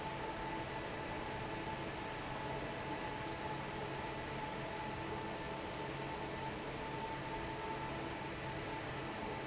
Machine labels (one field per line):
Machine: fan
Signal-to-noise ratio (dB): 0 dB